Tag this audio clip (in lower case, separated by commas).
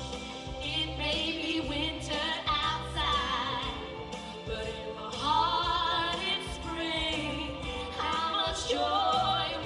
music